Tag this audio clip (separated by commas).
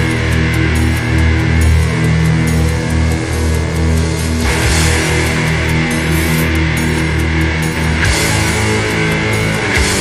Music